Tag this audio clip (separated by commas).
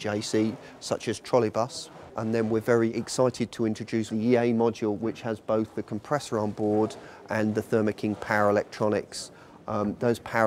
Speech